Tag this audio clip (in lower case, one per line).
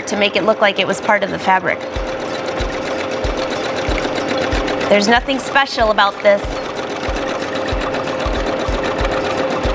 sewing machine